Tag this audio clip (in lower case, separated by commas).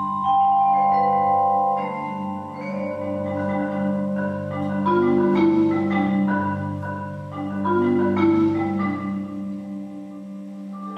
mallet percussion, glockenspiel, marimba, xylophone